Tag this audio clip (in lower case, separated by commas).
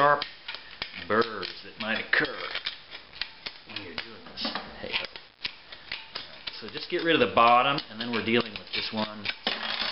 speech